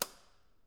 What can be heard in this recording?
switch being turned off